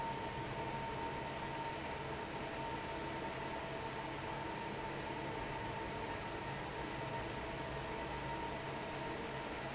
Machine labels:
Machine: fan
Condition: normal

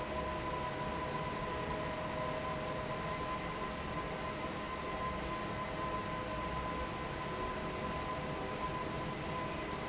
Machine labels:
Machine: fan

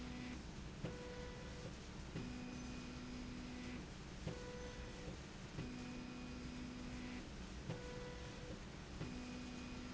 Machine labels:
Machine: slide rail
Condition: normal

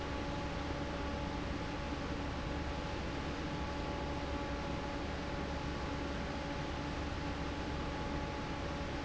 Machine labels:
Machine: fan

